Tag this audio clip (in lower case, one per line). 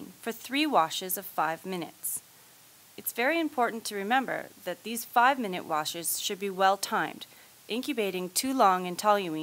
speech